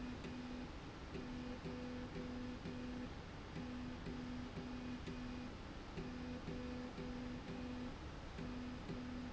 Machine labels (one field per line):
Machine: slide rail